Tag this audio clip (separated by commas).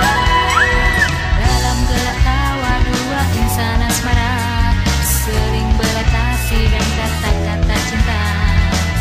Progressive rock, Jazz, Grunge, Rock and roll, Music, Punk rock